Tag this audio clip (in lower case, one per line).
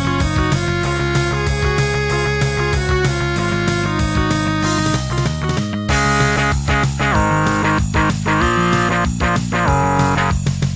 music